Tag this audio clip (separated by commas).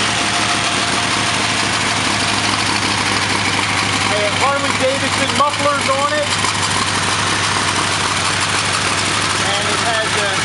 car engine starting